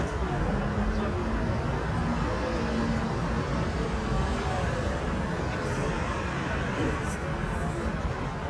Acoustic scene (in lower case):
street